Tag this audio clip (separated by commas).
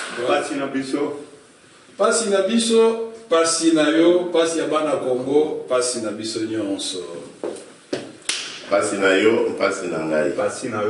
man speaking, Speech